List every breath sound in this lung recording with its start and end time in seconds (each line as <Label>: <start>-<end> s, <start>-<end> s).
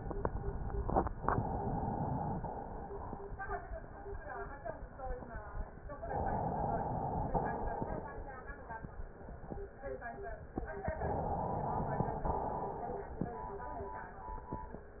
Inhalation: 1.20-2.35 s, 6.04-7.29 s, 10.99-12.22 s
Exhalation: 2.35-3.40 s, 7.29-8.31 s, 12.22-13.28 s